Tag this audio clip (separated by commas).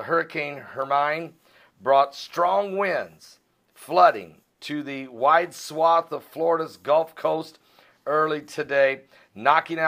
Speech